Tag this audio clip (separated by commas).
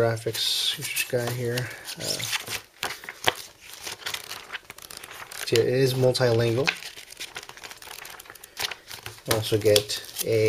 inside a small room, Speech